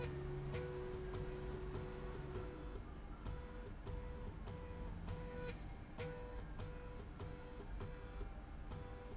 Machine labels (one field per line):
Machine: slide rail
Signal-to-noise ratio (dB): 6 dB